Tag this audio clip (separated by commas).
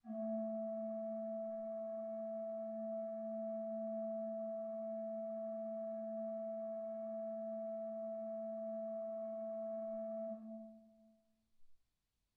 Organ, Musical instrument, Keyboard (musical), Music